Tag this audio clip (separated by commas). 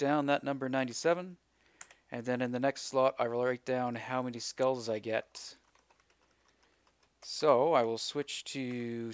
Computer keyboard, Typing